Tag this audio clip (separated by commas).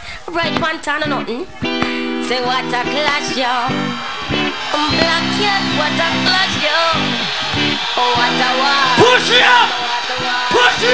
Music, Speech